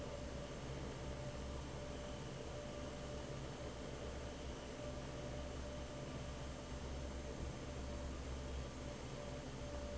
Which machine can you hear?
fan